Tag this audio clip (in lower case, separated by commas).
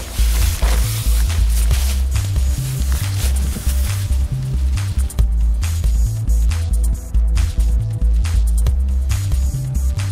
music